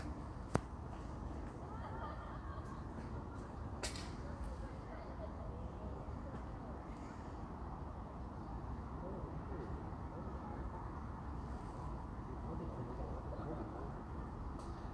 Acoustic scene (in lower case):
park